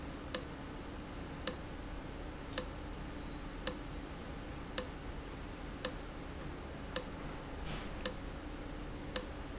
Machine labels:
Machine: valve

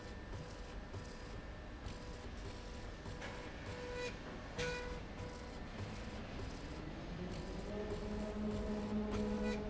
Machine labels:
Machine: slide rail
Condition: normal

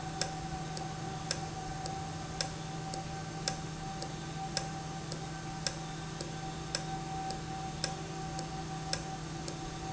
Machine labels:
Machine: valve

